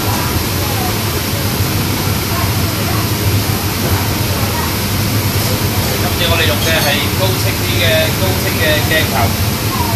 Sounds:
Speech

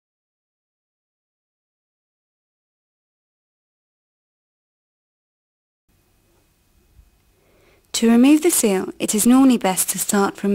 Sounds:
Speech

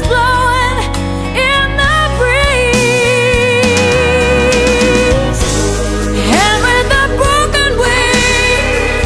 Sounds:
Music

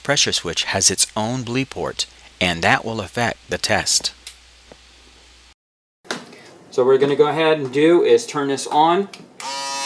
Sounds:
electric razor, Speech

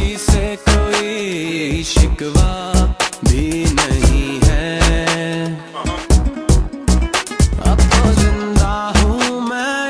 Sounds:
Afrobeat

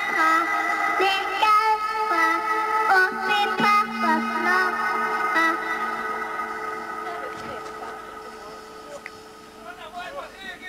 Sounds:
Child singing, Speech

